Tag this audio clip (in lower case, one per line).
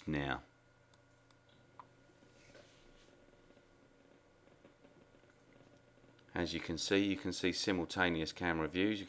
speech